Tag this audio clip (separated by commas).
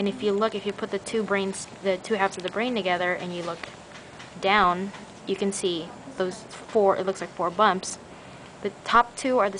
Speech